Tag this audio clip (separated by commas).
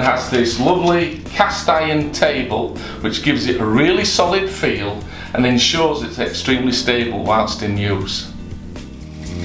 Music, Speech